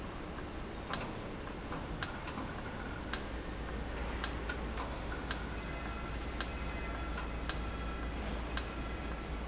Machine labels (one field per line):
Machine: valve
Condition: normal